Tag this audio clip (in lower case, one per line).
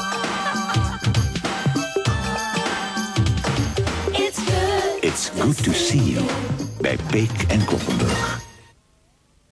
speech
music